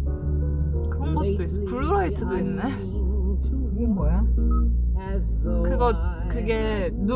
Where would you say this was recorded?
in a car